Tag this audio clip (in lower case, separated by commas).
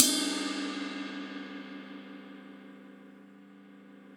music, cymbal, percussion, crash cymbal, musical instrument